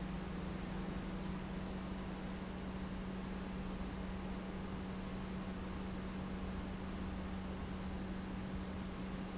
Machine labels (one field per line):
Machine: pump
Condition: normal